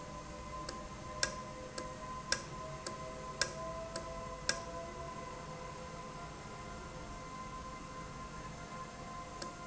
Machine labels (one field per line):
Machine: valve